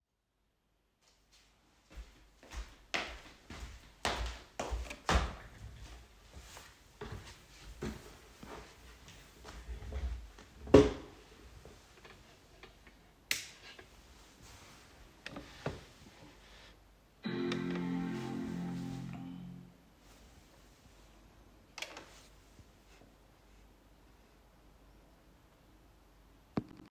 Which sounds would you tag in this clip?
footsteps, light switch